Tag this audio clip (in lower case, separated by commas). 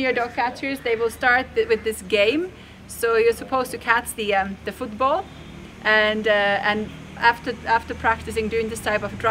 speech